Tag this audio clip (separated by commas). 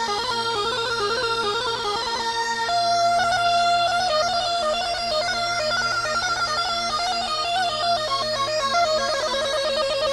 Music, Ska